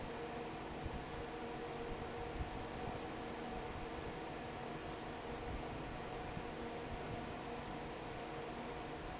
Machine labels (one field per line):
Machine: fan